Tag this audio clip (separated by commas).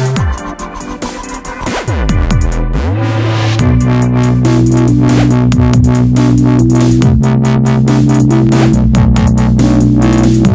Sampler, Music, Electronic music, Dubstep